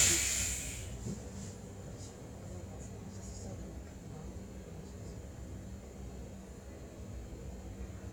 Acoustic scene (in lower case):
bus